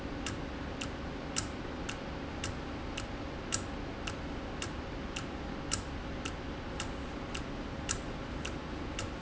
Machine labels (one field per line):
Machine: valve